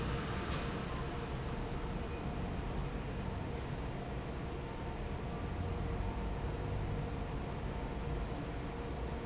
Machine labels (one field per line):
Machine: fan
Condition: normal